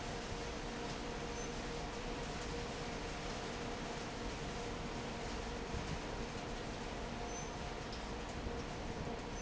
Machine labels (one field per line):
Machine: fan